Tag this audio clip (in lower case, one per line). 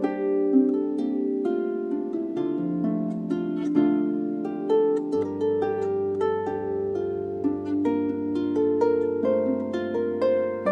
music
playing harp
harp